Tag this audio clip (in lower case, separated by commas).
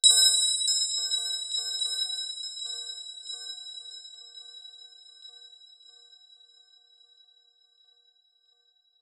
bell